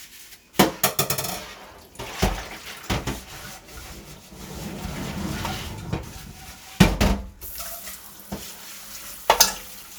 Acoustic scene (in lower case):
kitchen